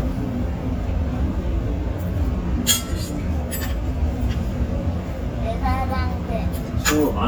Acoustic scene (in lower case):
restaurant